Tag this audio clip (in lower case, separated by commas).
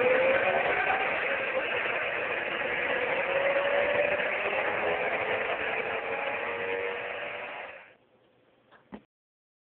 vroom